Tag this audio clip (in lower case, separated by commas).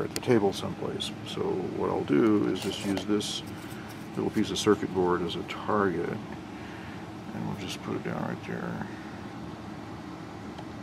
speech